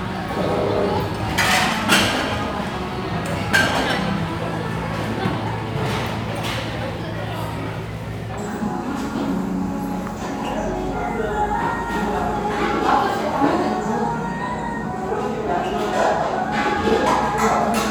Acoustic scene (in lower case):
restaurant